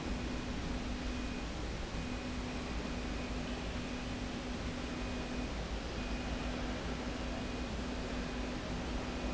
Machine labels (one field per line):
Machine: slide rail